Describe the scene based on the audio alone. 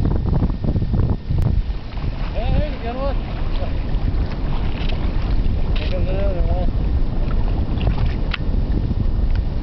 Wind blowing, water splashes, people speak